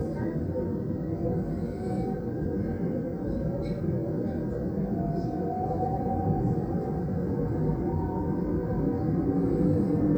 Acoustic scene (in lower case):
subway train